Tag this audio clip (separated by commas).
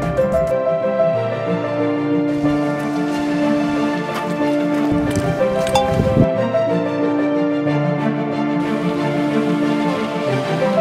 Music